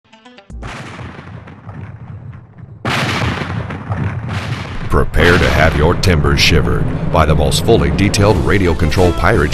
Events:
0.0s-0.7s: music
0.6s-8.1s: explosion
4.9s-6.8s: man speaking
7.1s-9.5s: man speaking
8.2s-9.5s: water
8.8s-9.5s: music

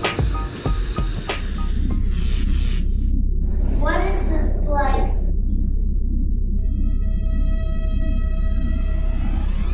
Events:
0.0s-9.7s: sound effect
2.0s-2.8s: unknown sound
3.8s-5.1s: child speech
6.3s-6.4s: generic impact sounds
6.5s-9.7s: music

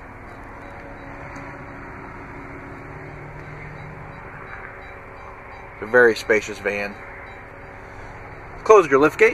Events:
0.0s-9.3s: motor vehicle (road)
0.0s-9.3s: wind
0.2s-0.4s: beep
0.3s-0.8s: generic impact sounds
0.6s-0.7s: beep
0.9s-1.1s: beep
1.3s-1.4s: tick
1.6s-1.8s: beep
2.0s-2.1s: beep
2.4s-2.4s: beep
2.7s-2.8s: beep
3.1s-3.2s: beep
3.3s-3.5s: tick
3.4s-3.5s: beep
3.6s-3.9s: speech
3.8s-3.9s: beep
4.1s-4.2s: beep
4.3s-4.7s: generic impact sounds
4.5s-4.6s: beep
4.8s-4.9s: beep
5.2s-5.3s: beep
5.5s-5.7s: beep
5.8s-7.0s: male speech
5.8s-5.9s: beep
6.2s-6.3s: beep
6.6s-6.7s: beep
6.9s-7.0s: beep
7.2s-7.4s: beep
7.6s-7.7s: beep
7.7s-8.2s: surface contact
8.6s-9.3s: male speech

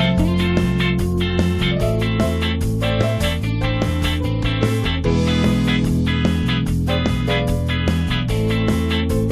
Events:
0.0s-9.3s: music

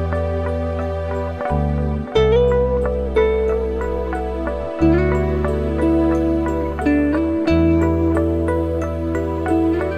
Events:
0.0s-9.9s: music

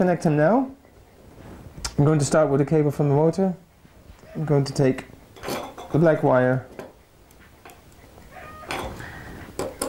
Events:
0.0s-0.8s: male speech
0.0s-9.8s: mechanisms
0.8s-1.1s: generic impact sounds
1.3s-1.7s: surface contact
1.8s-1.9s: tick
2.0s-3.6s: male speech
4.1s-4.3s: generic impact sounds
4.3s-5.0s: male speech
5.3s-5.9s: generic impact sounds
5.9s-6.6s: male speech
6.7s-6.9s: generic impact sounds
7.3s-7.5s: generic impact sounds
7.6s-7.8s: generic impact sounds
7.9s-8.1s: generic impact sounds
8.3s-8.7s: brief tone
8.7s-9.0s: thud
9.0s-9.4s: breathing
9.6s-9.8s: generic impact sounds

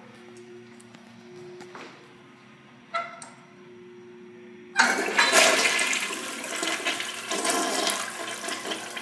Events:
0.0s-9.0s: mechanisms
0.1s-0.2s: walk
0.3s-0.4s: walk
0.6s-0.9s: walk
1.6s-1.7s: walk
1.7s-1.9s: generic impact sounds
2.9s-3.3s: generic impact sounds
4.7s-9.0s: toilet flush

